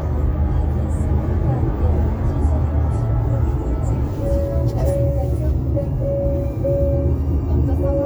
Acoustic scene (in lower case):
car